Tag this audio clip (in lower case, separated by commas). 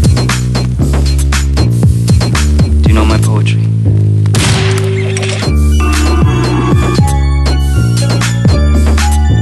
gunfire